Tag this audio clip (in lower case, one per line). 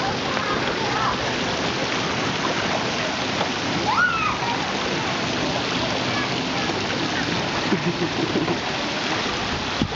water